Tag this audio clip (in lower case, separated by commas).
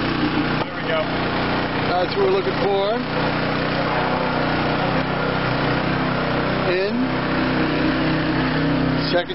vehicle, speech